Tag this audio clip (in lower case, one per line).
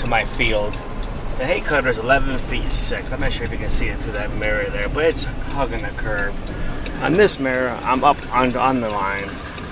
car
vehicle